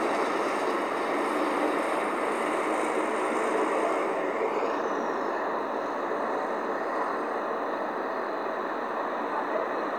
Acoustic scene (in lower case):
street